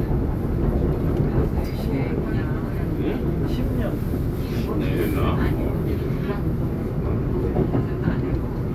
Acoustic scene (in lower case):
subway train